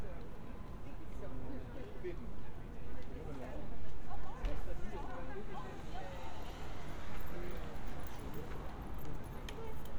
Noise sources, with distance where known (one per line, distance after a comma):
person or small group talking, near